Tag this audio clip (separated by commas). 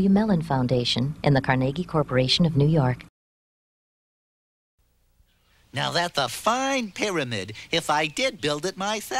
Speech